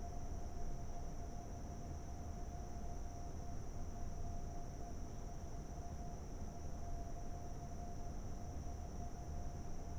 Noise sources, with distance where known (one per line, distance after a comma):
background noise